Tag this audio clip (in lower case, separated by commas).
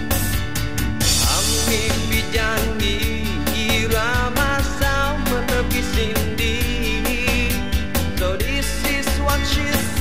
music